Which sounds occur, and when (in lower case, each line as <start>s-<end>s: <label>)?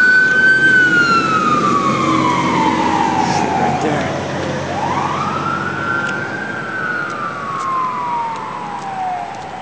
0.0s-9.6s: motor vehicle (road)
0.0s-9.6s: siren
0.3s-0.3s: tick
2.3s-2.3s: tick
3.8s-3.8s: tick
3.8s-4.1s: male speech
4.0s-4.0s: tick
6.0s-6.1s: tick
7.1s-7.1s: tick
7.6s-7.7s: tick
8.3s-8.4s: tick
8.8s-8.8s: tick
9.3s-9.4s: tick